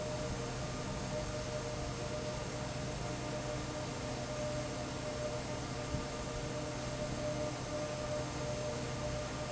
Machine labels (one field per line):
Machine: fan